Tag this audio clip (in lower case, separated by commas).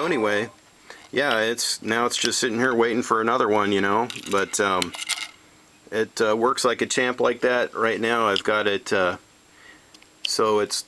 speech, inside a small room